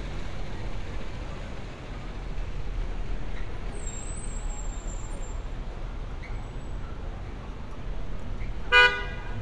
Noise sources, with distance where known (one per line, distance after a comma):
engine of unclear size, near
car horn, near